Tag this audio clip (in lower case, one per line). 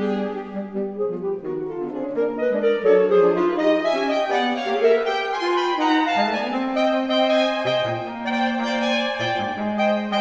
bowed string instrument
cello